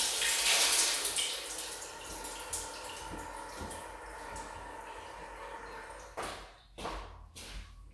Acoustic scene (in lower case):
restroom